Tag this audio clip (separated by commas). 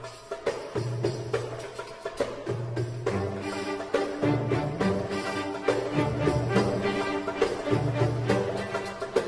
Music, Folk music